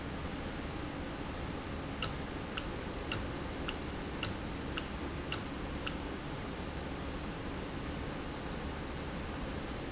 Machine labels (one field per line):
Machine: valve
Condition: normal